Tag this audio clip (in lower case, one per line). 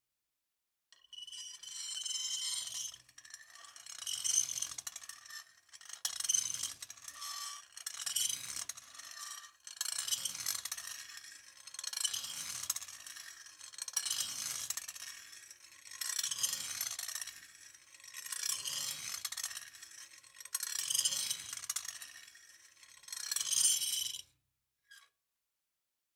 screech